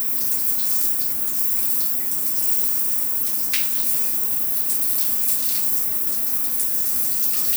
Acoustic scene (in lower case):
restroom